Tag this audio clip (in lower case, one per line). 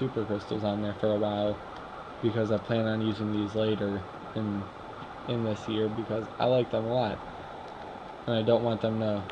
speech